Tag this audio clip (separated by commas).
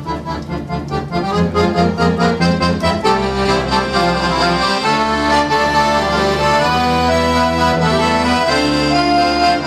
playing accordion